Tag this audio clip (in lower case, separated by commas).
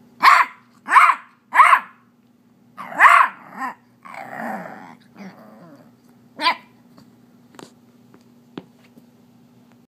dog, canids, domestic animals, bark, animal